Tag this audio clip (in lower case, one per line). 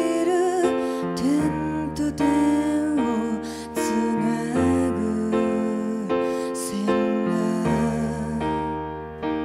funk
music
tender music